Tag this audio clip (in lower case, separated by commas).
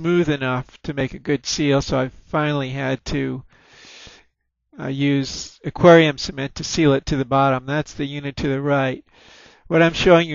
speech